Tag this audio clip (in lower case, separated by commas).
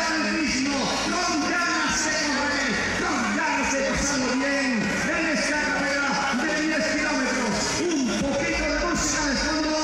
outside, urban or man-made, speech